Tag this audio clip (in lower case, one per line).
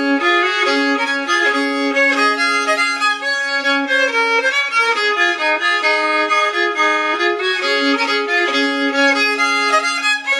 musical instrument
violin
music